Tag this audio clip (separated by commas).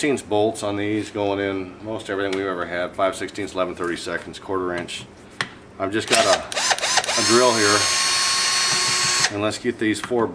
Speech, inside a small room